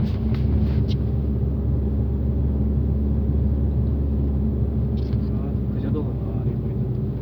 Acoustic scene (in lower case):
car